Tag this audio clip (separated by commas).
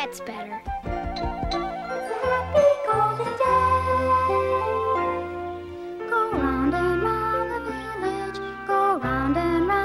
Music, Speech